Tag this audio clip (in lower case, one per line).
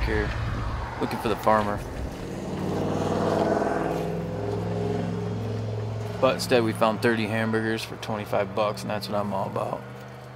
outside, rural or natural
speech